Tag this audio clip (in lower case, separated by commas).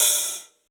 cymbal, hi-hat, musical instrument, music, percussion